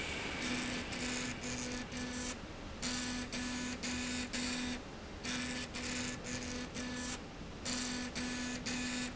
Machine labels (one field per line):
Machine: slide rail